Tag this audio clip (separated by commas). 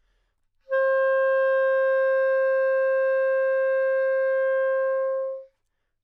Music, Musical instrument, woodwind instrument